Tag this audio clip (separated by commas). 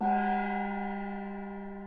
Music, Gong, Percussion, Musical instrument